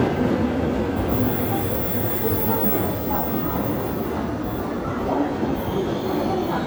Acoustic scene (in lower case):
subway station